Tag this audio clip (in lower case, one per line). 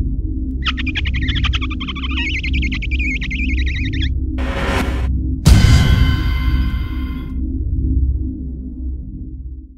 music
sonar